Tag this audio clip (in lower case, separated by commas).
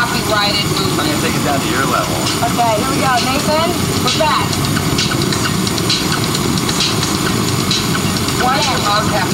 speech